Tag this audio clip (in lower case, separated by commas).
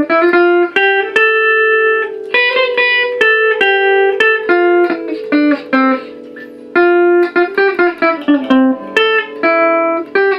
guitar, electric guitar, music, musical instrument, strum